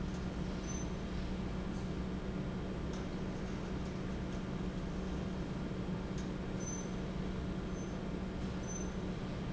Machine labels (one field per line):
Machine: fan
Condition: normal